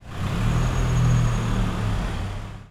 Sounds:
vehicle, car, motor vehicle (road)

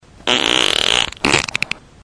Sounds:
fart

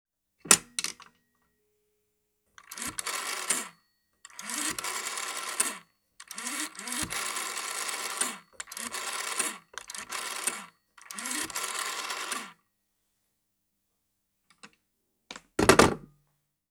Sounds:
telephone, alarm

